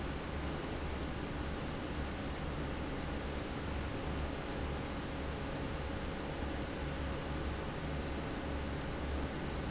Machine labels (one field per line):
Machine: fan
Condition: abnormal